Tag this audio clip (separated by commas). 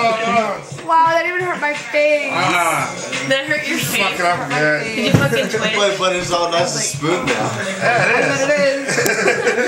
Speech, Music